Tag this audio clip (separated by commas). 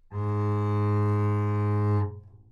Bowed string instrument, Music, Musical instrument